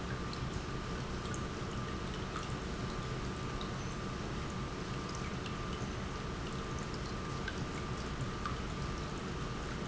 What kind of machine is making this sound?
pump